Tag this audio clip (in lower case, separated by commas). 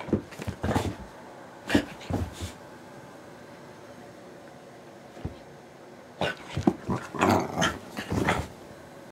domestic animals, animal, dog, yip